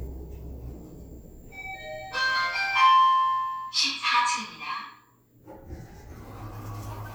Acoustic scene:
elevator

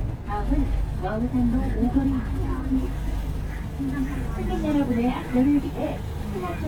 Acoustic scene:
bus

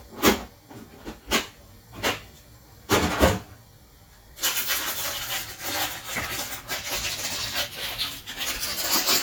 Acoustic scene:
kitchen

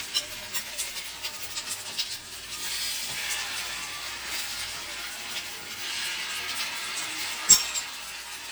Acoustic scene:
kitchen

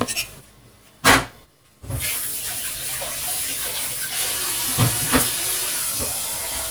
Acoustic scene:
kitchen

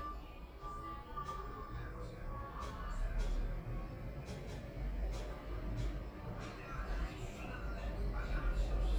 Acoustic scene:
elevator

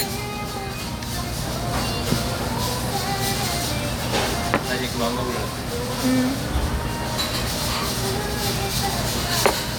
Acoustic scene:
restaurant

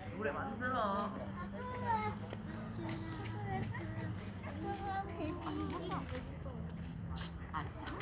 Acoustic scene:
park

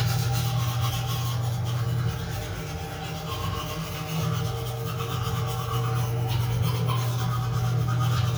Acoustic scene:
restroom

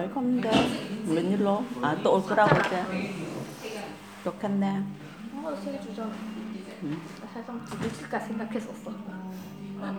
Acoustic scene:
crowded indoor space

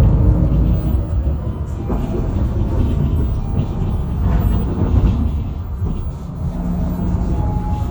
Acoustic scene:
bus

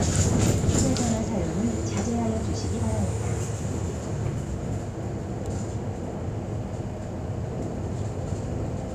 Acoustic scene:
bus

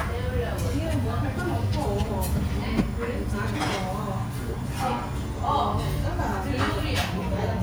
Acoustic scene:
restaurant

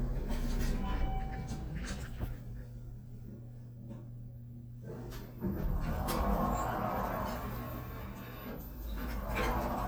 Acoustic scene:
elevator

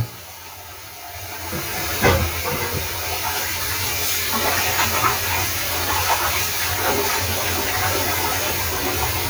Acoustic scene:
kitchen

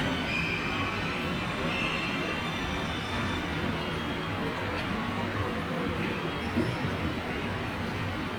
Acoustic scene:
subway station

